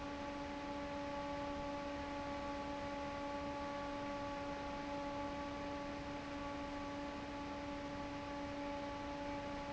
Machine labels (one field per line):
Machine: fan